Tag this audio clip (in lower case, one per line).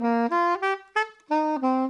musical instrument
wind instrument
music